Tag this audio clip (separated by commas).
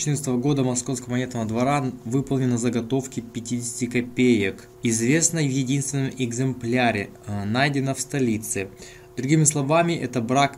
Speech